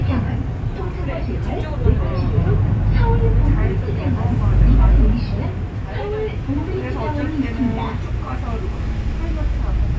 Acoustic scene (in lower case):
bus